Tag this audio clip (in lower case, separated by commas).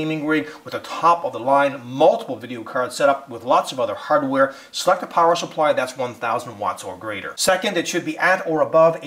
speech